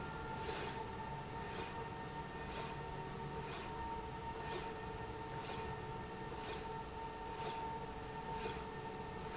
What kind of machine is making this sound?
slide rail